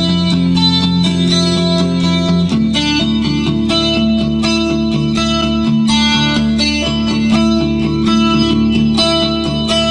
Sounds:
music, musical instrument, plucked string instrument, guitar

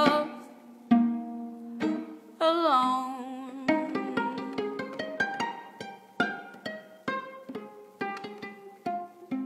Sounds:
music

